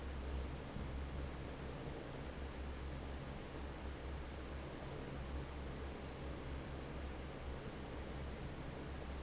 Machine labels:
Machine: fan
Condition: normal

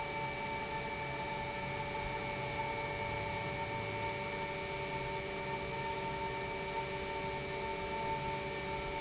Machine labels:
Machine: pump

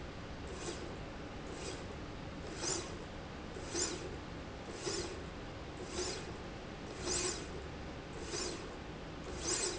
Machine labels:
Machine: slide rail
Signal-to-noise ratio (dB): 0 dB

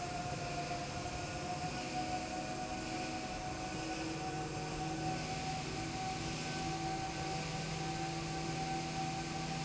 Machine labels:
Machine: slide rail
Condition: normal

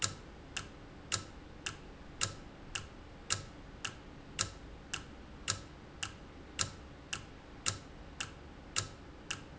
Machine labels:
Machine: valve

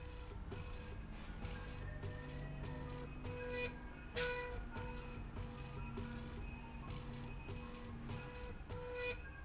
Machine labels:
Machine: slide rail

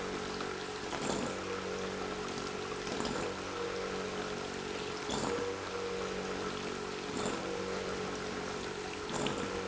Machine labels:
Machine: pump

